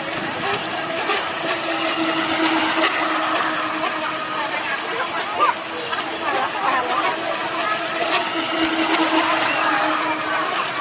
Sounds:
Speech, Vehicle

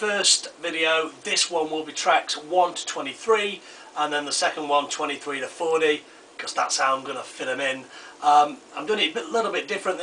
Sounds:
Speech

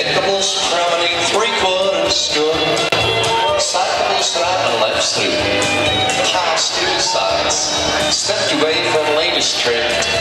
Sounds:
Music, Speech

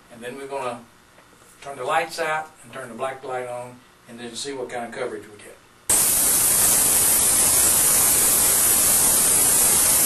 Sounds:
Speech, Spray

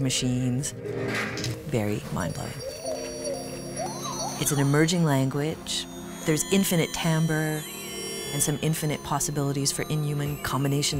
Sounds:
Music, Electronic music, Speech

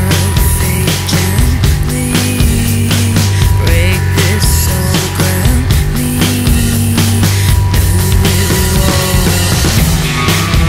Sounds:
Music

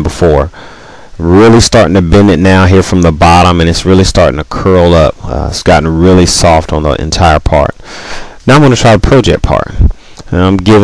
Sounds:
Speech

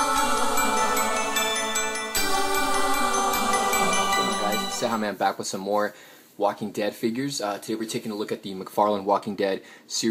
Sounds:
Speech, Music

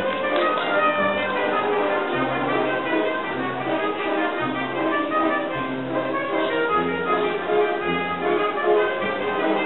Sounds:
Trumpet, Music, inside a large room or hall

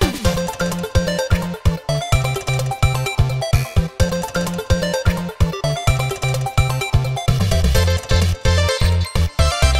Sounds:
Blues, Music

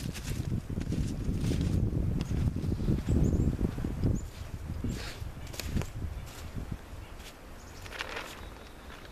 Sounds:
outside, rural or natural

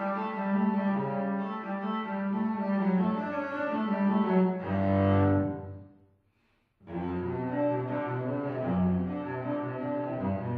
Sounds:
Music, Cello, Background music

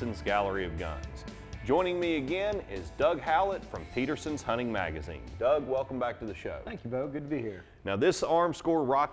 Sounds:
Speech, Music

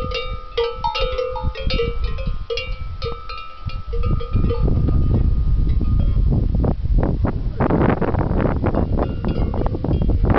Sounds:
bovinae cowbell

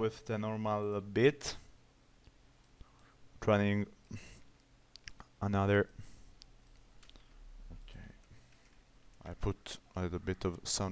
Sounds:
Speech

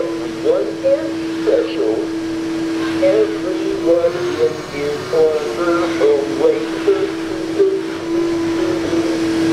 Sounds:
Speech, Male singing, Synthetic singing

